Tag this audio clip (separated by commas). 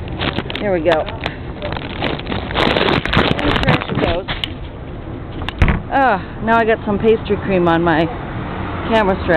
Vehicle, outside, urban or man-made, Car, Speech